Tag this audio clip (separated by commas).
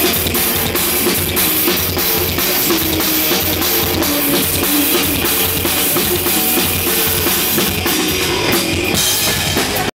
Bass drum, Music, Drum, Drum kit, Musical instrument